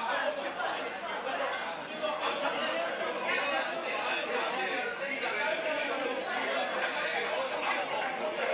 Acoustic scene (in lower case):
restaurant